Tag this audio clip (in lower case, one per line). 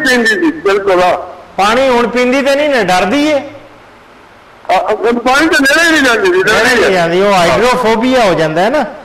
narration
speech